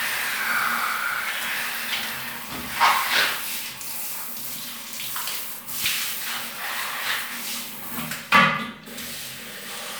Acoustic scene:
restroom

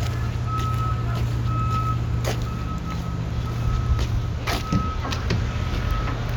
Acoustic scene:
residential area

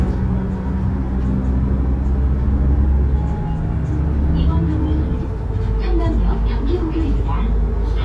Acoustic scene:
bus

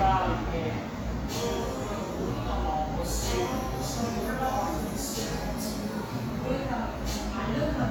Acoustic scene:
cafe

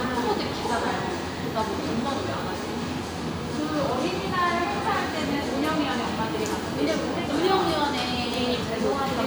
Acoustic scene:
crowded indoor space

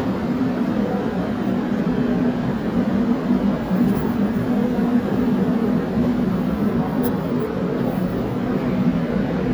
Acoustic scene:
subway station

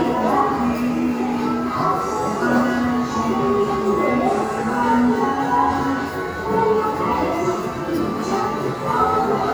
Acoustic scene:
subway station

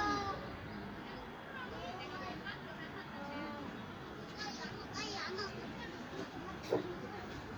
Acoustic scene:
residential area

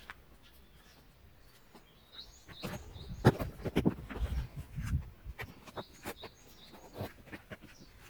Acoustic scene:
park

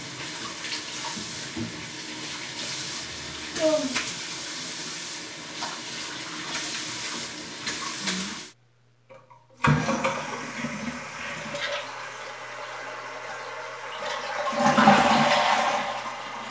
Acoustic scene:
restroom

